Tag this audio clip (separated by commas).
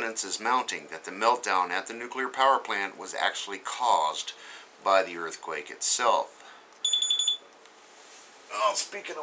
Speech